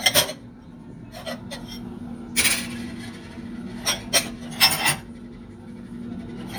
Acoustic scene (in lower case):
kitchen